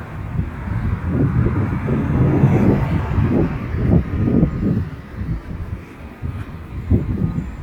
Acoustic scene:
residential area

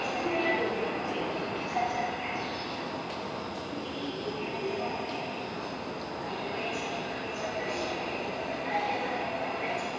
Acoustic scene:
subway station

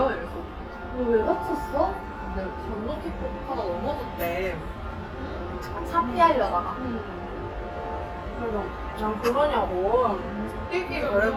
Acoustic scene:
restaurant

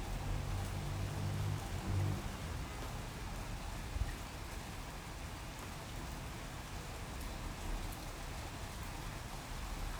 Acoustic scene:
residential area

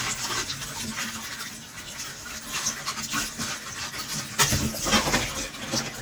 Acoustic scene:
kitchen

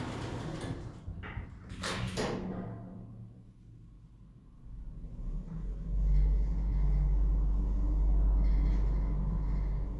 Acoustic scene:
elevator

